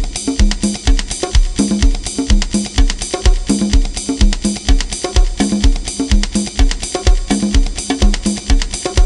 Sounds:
Drum, Snare drum, Bass drum, Rimshot, Percussion

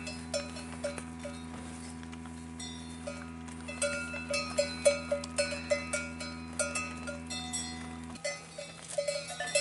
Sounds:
bovinae cowbell

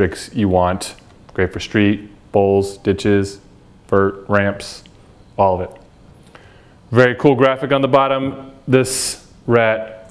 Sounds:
Speech

